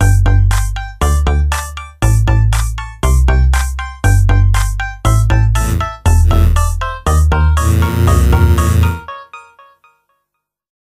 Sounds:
Music

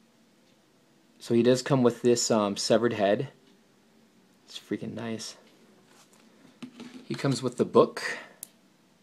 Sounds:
inside a small room, Speech

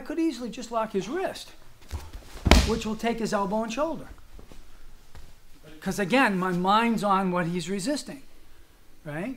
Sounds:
Speech

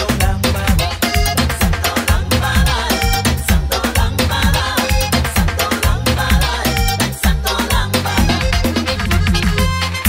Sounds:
Music

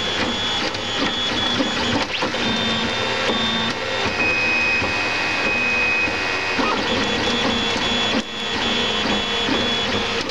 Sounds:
printer printing, Printer

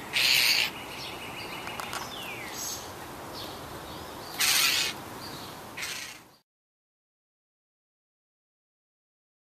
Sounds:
Rustle

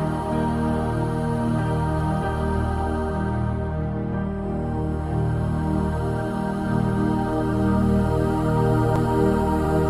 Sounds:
New-age music, Music

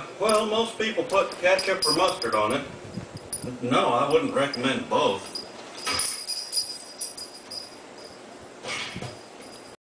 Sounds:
Speech

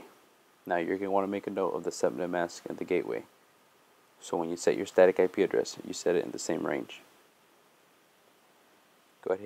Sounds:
Speech

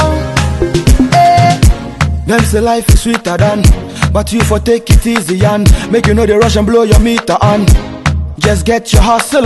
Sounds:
Music

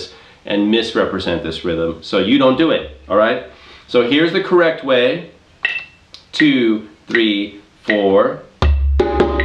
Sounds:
inside a small room, Drum, Speech, Music

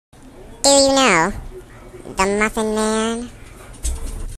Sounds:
Speech

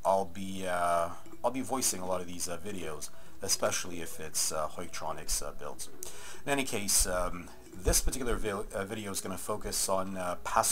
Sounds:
Speech

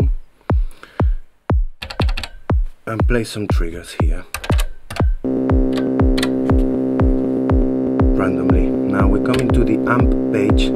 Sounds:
Speech, playing synthesizer, Music, Sampler, Musical instrument, Synthesizer

